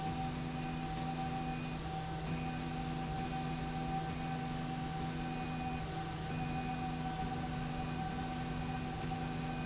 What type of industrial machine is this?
slide rail